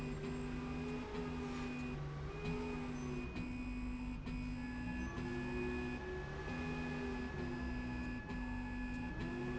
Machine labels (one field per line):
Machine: slide rail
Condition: normal